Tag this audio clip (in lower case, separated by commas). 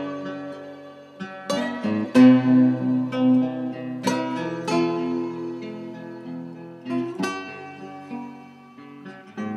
acoustic guitar, music, plucked string instrument, guitar, electric guitar, musical instrument, strum